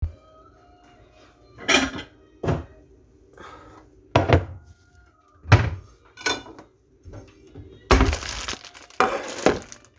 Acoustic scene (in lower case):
kitchen